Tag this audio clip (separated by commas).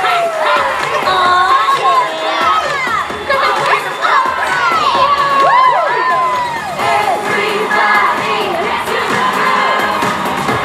inside a large room or hall, Music, Speech